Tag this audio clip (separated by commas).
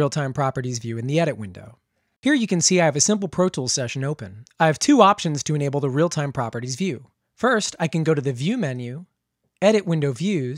Speech